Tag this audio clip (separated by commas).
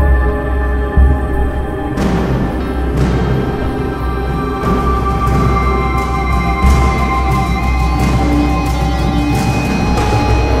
Music, Theme music